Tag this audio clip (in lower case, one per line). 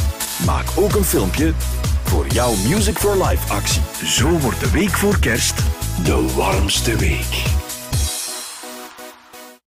background music
music
speech